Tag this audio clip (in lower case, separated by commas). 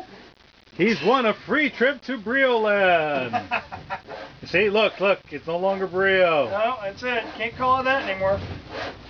speech